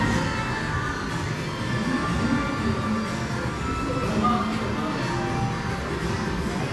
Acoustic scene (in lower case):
cafe